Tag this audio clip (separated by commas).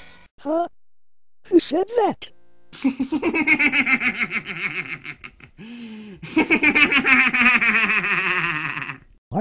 Speech